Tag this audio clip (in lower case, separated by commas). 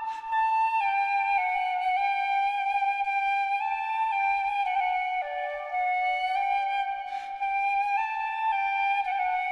music